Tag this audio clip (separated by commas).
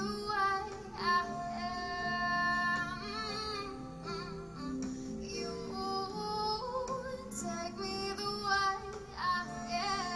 Female singing, Music, Singing